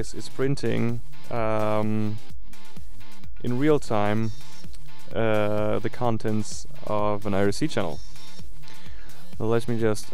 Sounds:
Music, Printer, Speech

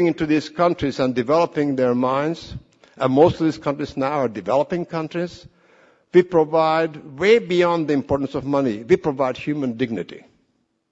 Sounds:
Speech, man speaking, Narration

